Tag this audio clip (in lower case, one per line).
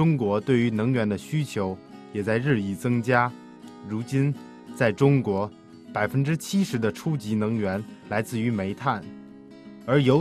music
speech